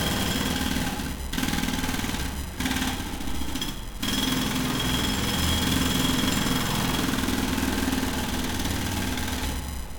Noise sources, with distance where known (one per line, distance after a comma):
jackhammer, near